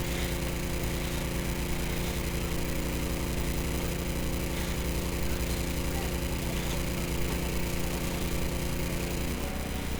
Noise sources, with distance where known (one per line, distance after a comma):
engine of unclear size, near